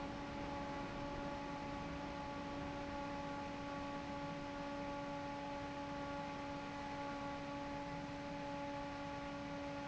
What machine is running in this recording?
fan